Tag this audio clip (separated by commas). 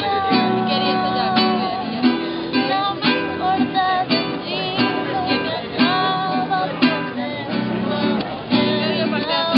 Speech, Music